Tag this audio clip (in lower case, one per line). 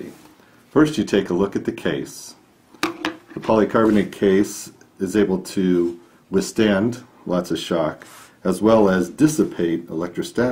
speech